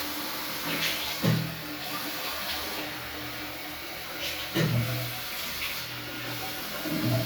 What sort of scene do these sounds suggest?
restroom